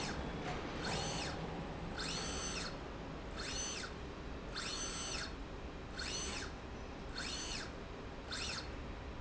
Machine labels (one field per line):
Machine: slide rail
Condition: normal